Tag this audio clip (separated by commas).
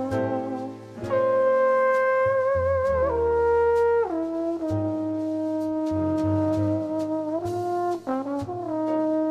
Brass instrument, Trombone, playing trombone